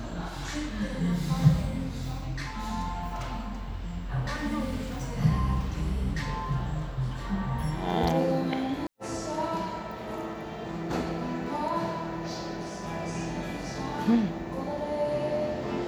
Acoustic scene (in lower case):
cafe